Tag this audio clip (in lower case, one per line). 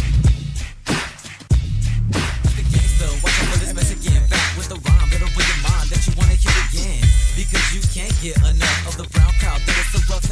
music